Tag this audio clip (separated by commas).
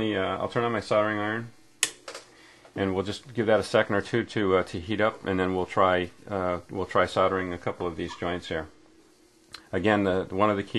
Speech